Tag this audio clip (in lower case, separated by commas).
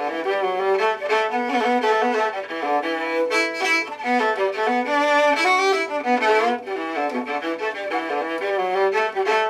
fiddle, bowed string instrument